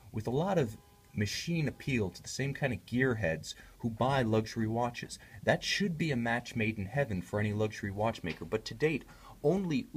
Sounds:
Speech

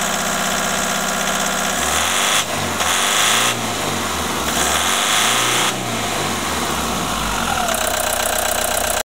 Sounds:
Engine starting, Accelerating, Vehicle, Medium engine (mid frequency), Idling

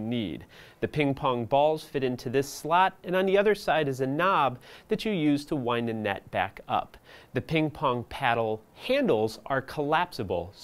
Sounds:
Speech

